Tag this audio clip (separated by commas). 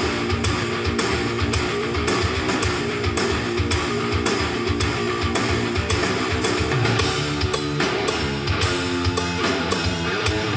Guitar, Music